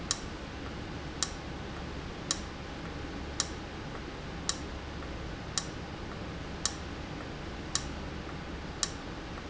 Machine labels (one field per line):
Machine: valve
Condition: abnormal